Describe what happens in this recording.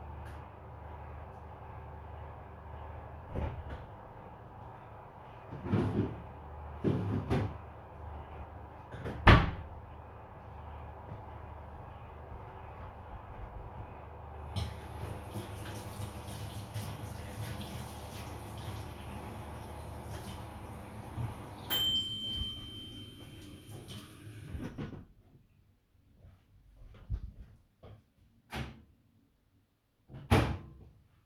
While the microwave was running, I opened the fridge, took out some vegetables, and started washing them. When the microwave finished, I went up to it and took the food out.